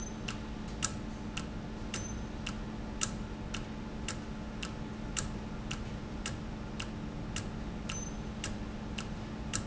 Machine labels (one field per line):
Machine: valve